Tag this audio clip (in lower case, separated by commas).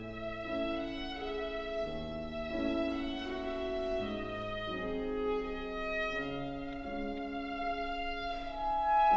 musical instrument, music, fiddle